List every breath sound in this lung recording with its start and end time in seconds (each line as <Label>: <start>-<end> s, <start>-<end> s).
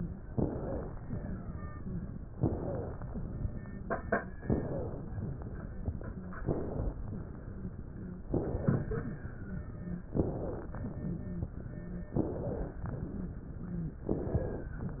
Inhalation: 0.27-1.24 s, 2.37-3.34 s, 4.44-5.41 s, 6.45-7.08 s, 8.33-9.28 s, 10.13-11.08 s, 12.14-12.90 s, 14.04-14.80 s
Wheeze: 0.44-0.84 s, 2.52-2.92 s, 4.63-5.03 s, 6.07-6.38 s, 7.48-7.78 s, 7.95-8.25 s, 9.43-9.73 s, 9.79-10.10 s, 11.06-11.55 s, 11.71-12.11 s, 13.62-14.02 s